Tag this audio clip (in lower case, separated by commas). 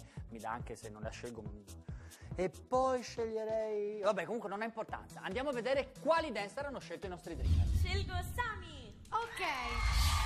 music, speech, theme music